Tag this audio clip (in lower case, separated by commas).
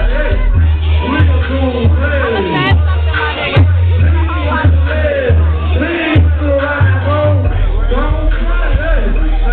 music, speech